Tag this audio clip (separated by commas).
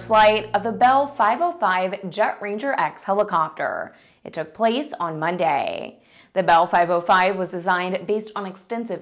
Speech